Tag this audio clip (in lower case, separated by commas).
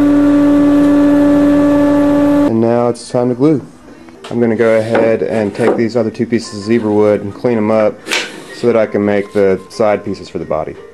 music, speech